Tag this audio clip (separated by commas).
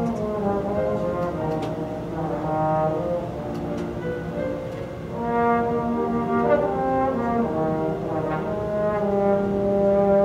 playing trombone, Music, Trombone, Musical instrument